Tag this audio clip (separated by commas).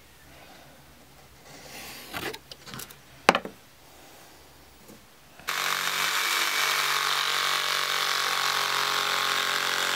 inside a small room, Wood, Power tool